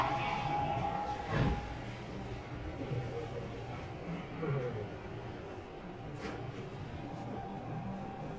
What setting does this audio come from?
subway train